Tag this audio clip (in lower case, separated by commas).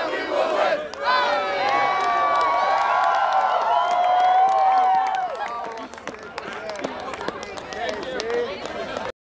speech